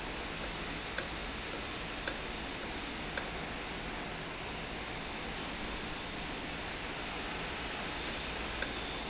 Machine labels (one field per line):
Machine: valve